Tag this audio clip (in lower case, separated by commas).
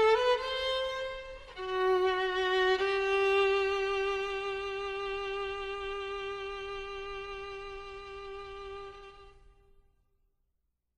bowed string instrument, music